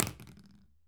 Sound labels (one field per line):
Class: object falling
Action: being thrown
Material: plastic